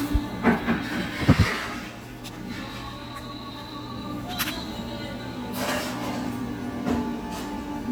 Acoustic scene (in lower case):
cafe